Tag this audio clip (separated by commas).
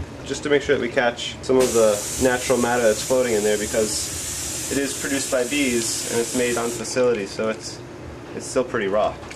Speech, inside a small room, Fill (with liquid), Liquid